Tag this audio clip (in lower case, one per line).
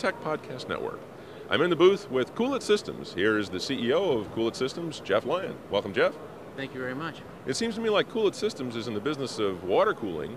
speech